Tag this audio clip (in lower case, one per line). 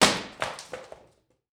wood